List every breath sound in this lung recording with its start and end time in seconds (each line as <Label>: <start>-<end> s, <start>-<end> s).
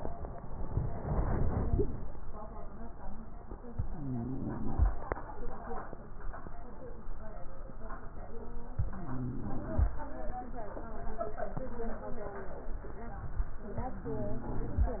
Inhalation: 3.72-4.91 s, 8.77-9.96 s, 13.78-14.97 s
Wheeze: 3.87-4.62 s, 8.95-9.71 s, 13.78-14.81 s